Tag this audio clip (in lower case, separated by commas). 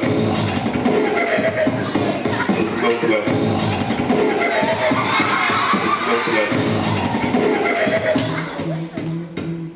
music, beatboxing